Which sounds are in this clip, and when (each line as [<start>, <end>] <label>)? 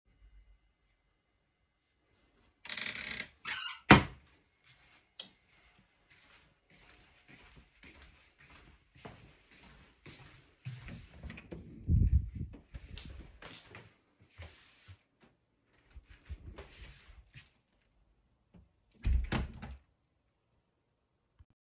[2.56, 4.18] wardrobe or drawer
[4.34, 11.33] footsteps
[5.05, 5.38] light switch
[10.58, 11.85] door
[12.70, 14.67] footsteps
[12.84, 13.18] light switch
[16.05, 17.49] footsteps
[18.98, 19.81] door